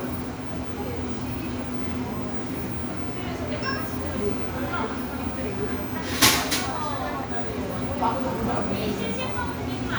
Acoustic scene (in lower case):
cafe